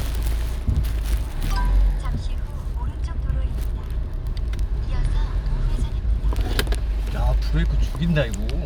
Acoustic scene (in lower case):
car